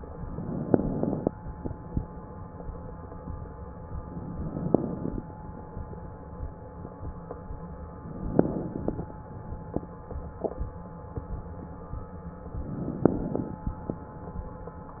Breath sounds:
Inhalation: 0.28-1.29 s, 4.19-5.20 s, 8.04-9.05 s, 12.68-13.68 s

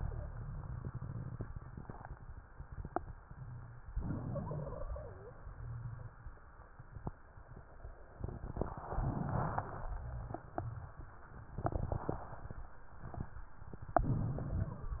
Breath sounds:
Inhalation: 3.96-5.38 s, 13.89-14.90 s
Wheeze: 3.96-5.38 s

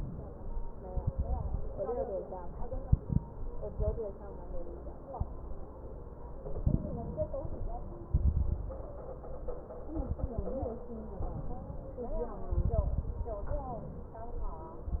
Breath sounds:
Inhalation: 0.00-0.27 s, 2.68-3.28 s, 6.53-7.37 s, 11.23-12.07 s, 13.53-14.46 s
Exhalation: 0.90-1.59 s, 3.57-4.13 s, 8.12-8.70 s, 9.94-10.80 s, 12.53-13.37 s
Crackles: 0.90-1.59 s, 2.65-3.29 s, 6.53-7.37 s, 8.12-8.70 s, 9.94-10.80 s, 12.53-13.37 s

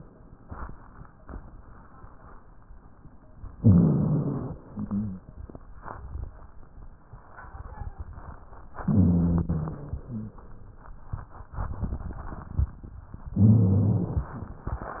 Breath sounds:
Inhalation: 3.55-4.58 s, 8.78-9.76 s, 13.33-14.34 s
Exhalation: 4.58-5.26 s, 9.82-10.44 s
Wheeze: 3.58-4.44 s, 4.58-5.26 s, 8.78-9.76 s, 9.82-10.44 s, 13.33-14.34 s

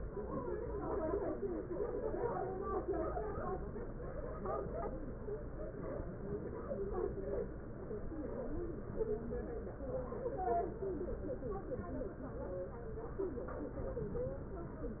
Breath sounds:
Inhalation: 13.74-14.69 s

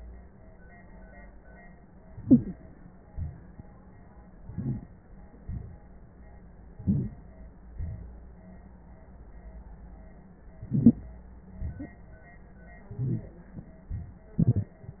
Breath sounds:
Inhalation: 2.09-2.85 s, 4.44-5.03 s, 6.70-7.40 s, 10.61-11.16 s, 12.92-13.47 s
Exhalation: 3.11-3.78 s, 5.45-5.92 s, 7.71-8.25 s, 11.52-12.07 s
Rhonchi: 12.97-13.20 s
Crackles: 4.44-5.03 s, 10.61-11.16 s

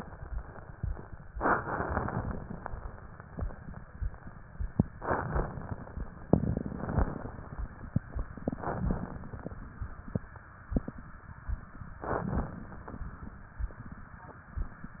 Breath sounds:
Inhalation: 1.34-2.35 s, 4.92-5.93 s, 6.31-7.40 s, 8.46-9.55 s, 12.00-13.09 s

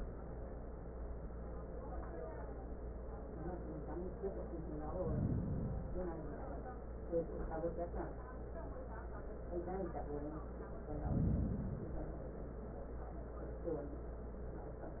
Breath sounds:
Inhalation: 4.74-6.24 s, 10.68-12.18 s

